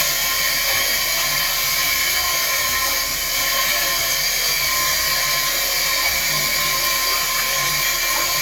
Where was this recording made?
in a restroom